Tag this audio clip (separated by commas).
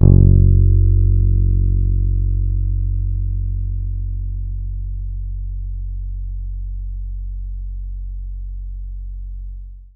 Musical instrument, Bass guitar, Guitar, Plucked string instrument, Music